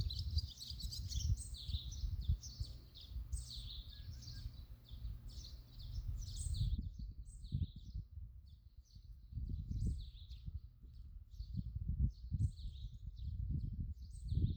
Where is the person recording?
in a park